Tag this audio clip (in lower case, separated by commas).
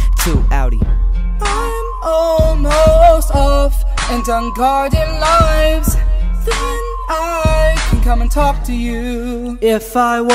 music